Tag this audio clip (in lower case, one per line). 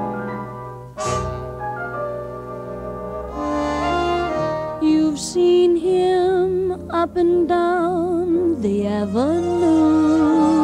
music